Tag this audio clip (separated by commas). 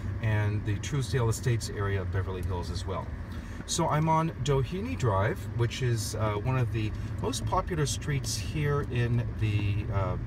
Speech